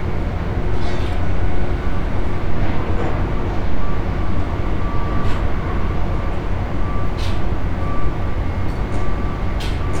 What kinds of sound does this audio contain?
unidentified alert signal